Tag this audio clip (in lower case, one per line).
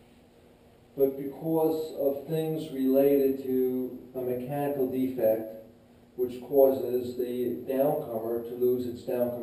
speech